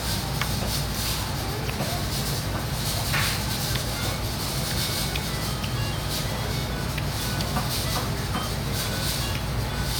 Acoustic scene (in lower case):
restaurant